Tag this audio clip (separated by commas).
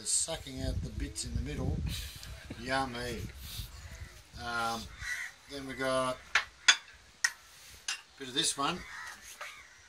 Speech